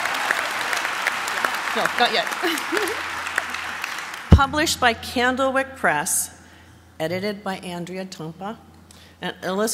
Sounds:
narration, speech, conversation, woman speaking

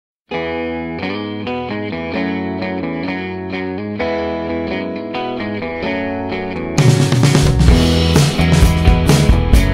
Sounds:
effects unit

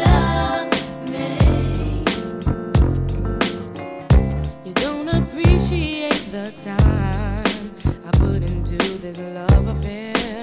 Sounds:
music, blues, rhythm and blues

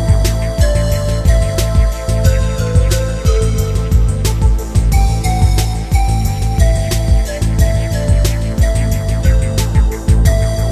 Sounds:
music

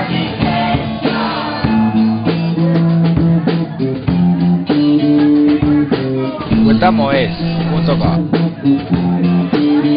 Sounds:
crowd, hubbub, music, speech

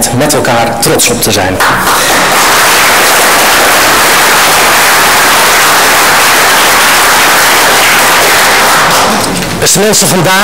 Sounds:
speech, monologue, man speaking

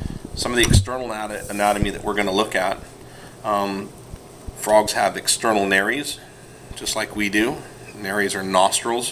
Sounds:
speech

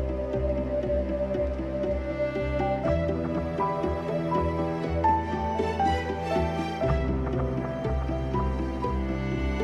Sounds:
music

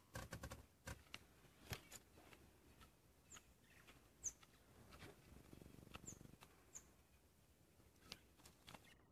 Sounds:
tweet

